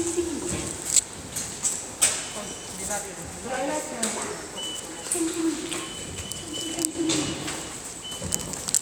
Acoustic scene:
subway station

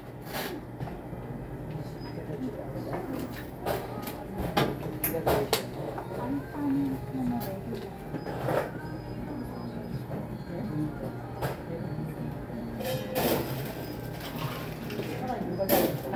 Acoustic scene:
cafe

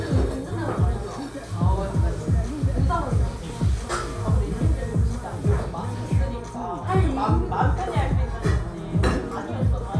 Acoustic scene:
cafe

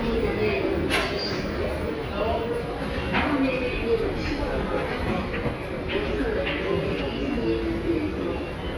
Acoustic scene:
subway station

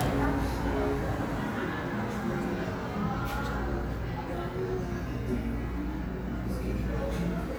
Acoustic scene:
cafe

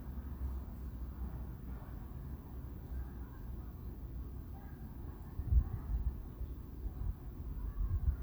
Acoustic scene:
residential area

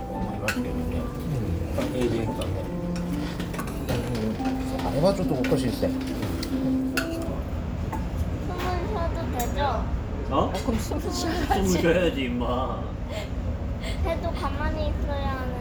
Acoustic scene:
restaurant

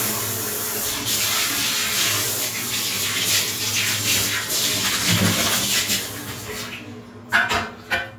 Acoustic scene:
restroom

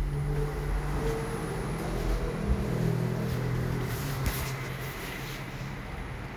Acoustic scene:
elevator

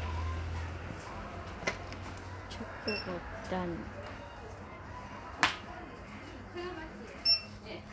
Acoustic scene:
crowded indoor space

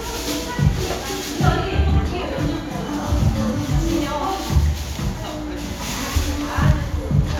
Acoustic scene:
cafe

